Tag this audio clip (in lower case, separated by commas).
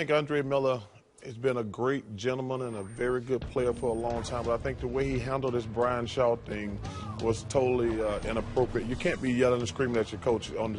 speech, music